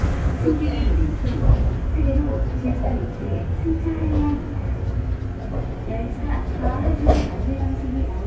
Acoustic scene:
subway train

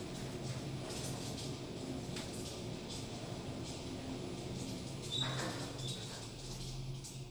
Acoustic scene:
elevator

